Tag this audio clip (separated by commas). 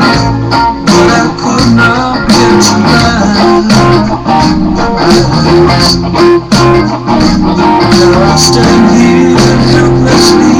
Electric guitar, Plucked string instrument, Musical instrument, Music, Guitar